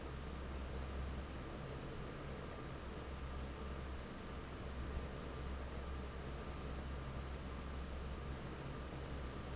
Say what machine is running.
fan